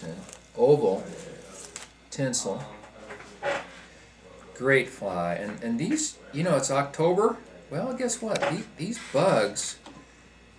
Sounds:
Speech

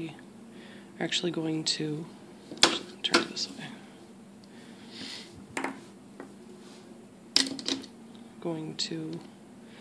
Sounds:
Speech, inside a small room

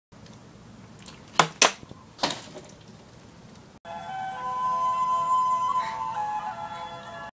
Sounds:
Sad music, Music

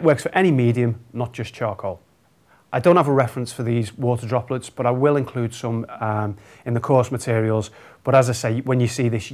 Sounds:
Speech

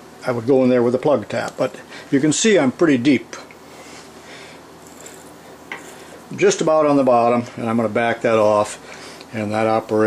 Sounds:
Speech, inside a small room

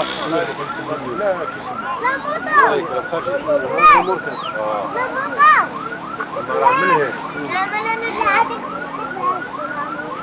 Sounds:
Speech, outside, rural or natural

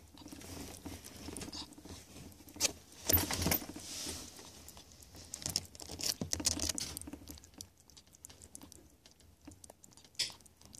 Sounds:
ferret dooking

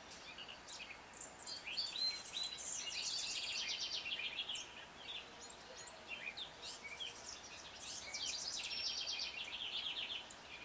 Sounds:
Domestic animals

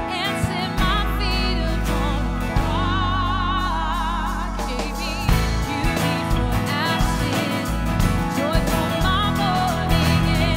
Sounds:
Music, Female singing

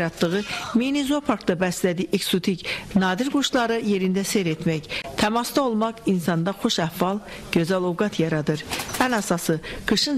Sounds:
Speech, Bird

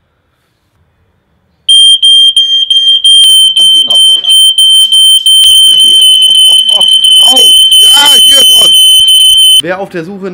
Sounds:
smoke detector beeping

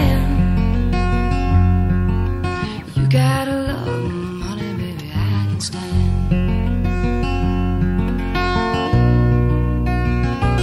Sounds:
Music

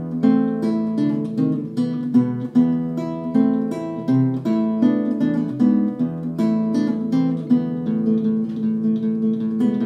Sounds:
Strum, Plucked string instrument, Music, Guitar, Musical instrument

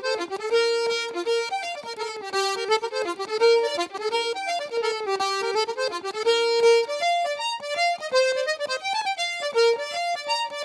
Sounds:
Accordion, Music

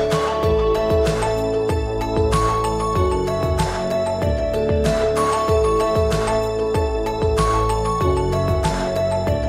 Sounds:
Music

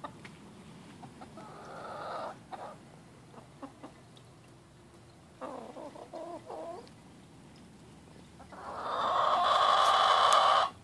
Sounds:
chicken clucking, rooster, Cluck, Fowl

